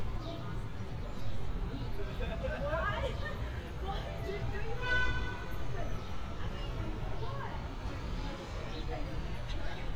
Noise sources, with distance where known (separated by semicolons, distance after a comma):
car horn, near; person or small group talking, near